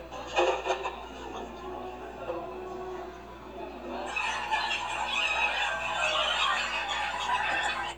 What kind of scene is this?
cafe